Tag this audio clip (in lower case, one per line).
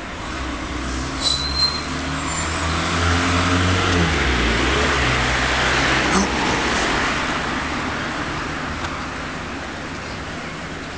vehicle